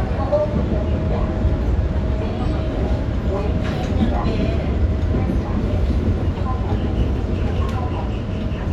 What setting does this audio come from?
subway train